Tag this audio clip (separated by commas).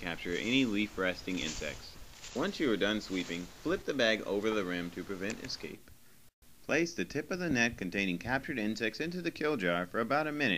Speech